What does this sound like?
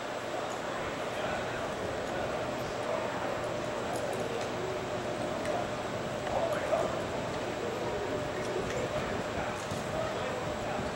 People are talking in the distance and metal clings